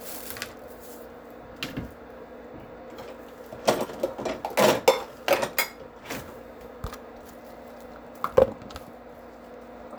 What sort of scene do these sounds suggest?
kitchen